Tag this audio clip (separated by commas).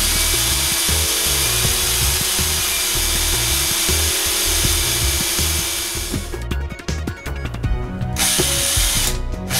Music